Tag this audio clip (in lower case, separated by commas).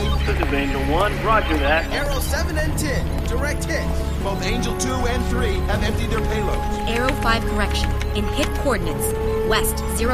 music, speech